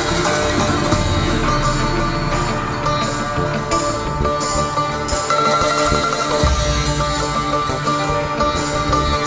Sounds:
playing sitar

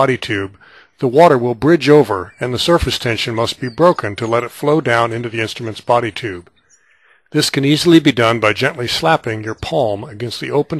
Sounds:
speech

